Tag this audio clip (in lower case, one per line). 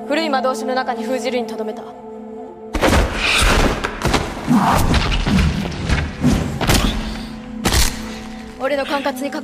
music
speech